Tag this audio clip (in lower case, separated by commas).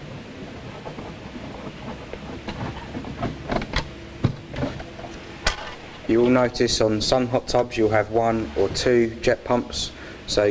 speech